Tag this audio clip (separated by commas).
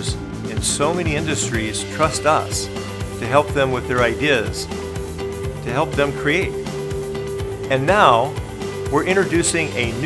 Music, Speech